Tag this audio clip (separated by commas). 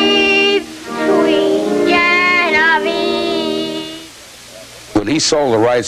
Music